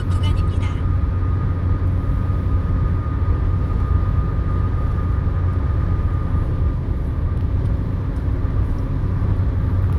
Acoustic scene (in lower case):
car